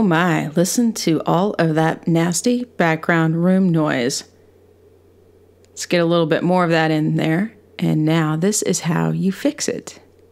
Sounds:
speech

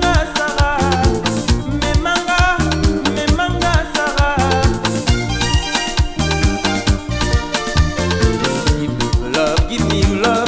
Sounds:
music, song, music of africa

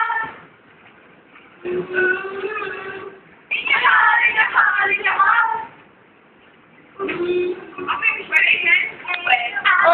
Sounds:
female singing, speech

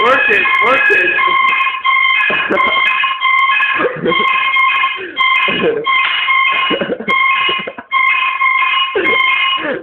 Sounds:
buzzer, speech

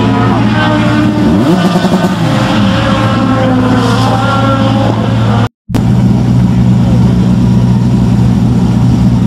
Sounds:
music, speech

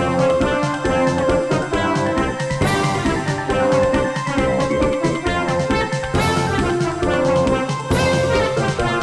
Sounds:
music, background music

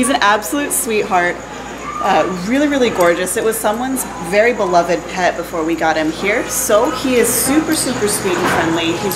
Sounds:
speech

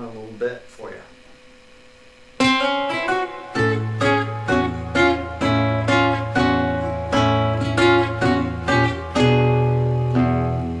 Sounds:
music, speech

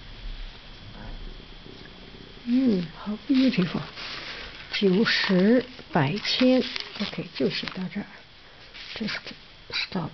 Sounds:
speech, inside a small room

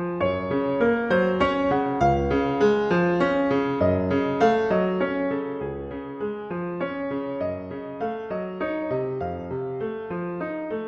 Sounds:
blues, music

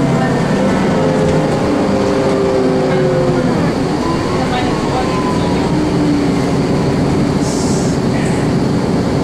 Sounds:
vehicle, speech, bus, driving buses

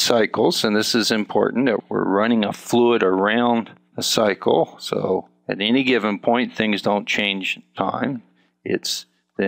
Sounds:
speech

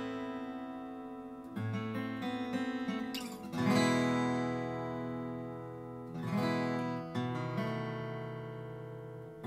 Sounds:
musical instrument, plucked string instrument, acoustic guitar, guitar, music

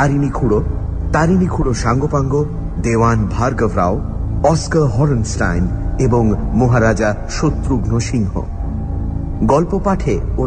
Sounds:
music, speech

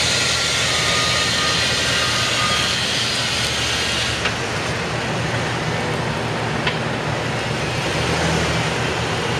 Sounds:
reversing beeps, vehicle, truck

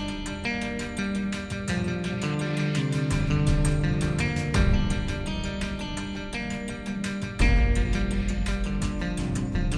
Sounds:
music

